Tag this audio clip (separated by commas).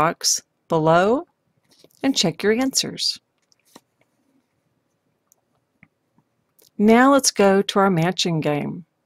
Clicking